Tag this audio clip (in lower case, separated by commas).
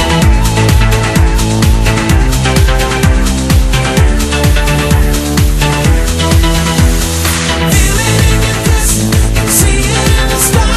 music